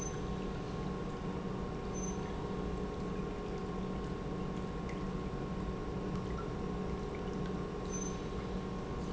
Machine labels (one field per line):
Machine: pump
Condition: normal